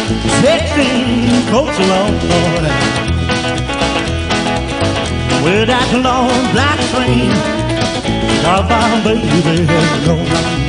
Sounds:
music

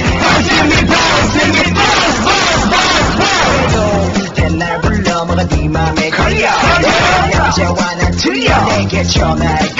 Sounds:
music

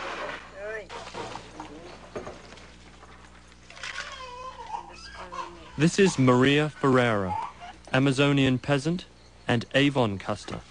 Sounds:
speech, inside a small room

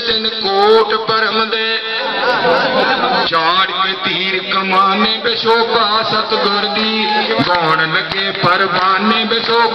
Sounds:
male singing

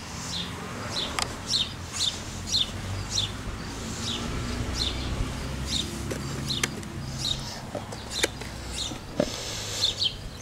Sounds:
animal

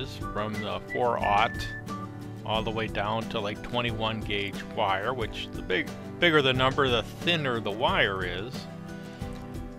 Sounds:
music, speech

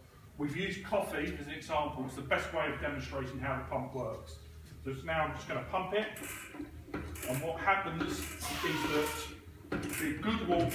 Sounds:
speech

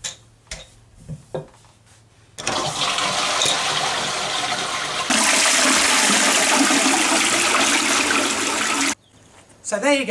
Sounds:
toilet flushing

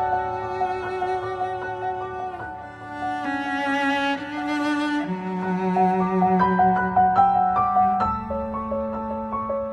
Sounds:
music, cello, string section

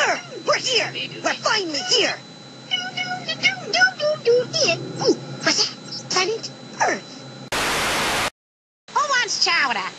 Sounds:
speech

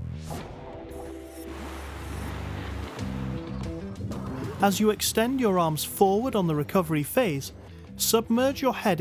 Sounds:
music, speech

